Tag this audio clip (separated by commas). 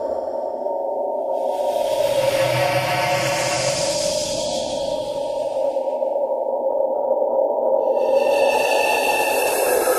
Music